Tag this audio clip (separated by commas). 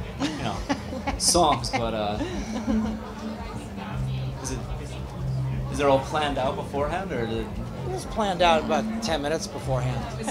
Music, Speech